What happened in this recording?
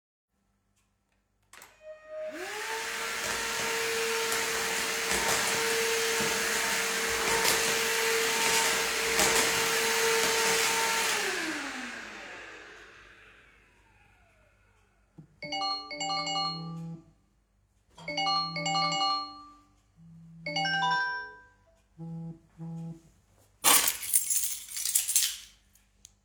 I switched on the vacuum cleaner and started cleaning the floor. After switching off the vacuum cleaner, my phone rang. I took a few steps and picked up my keys.